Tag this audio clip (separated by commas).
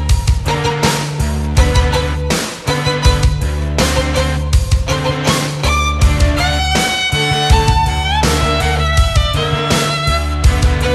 Music, Musical instrument, Violin